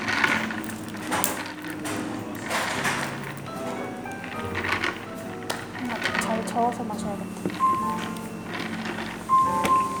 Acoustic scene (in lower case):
cafe